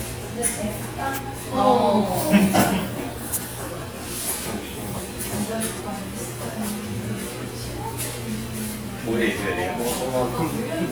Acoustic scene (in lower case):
crowded indoor space